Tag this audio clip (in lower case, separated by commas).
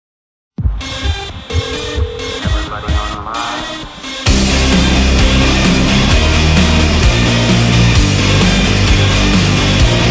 music